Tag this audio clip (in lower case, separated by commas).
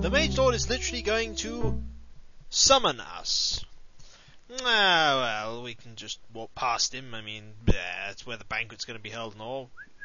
speech, music